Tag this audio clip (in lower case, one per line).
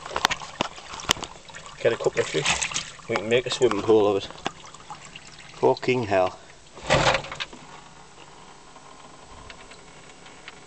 water
speech